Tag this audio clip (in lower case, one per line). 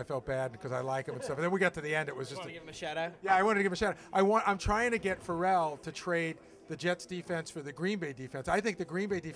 speech